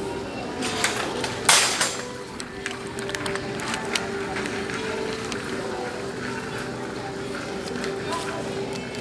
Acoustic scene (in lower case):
crowded indoor space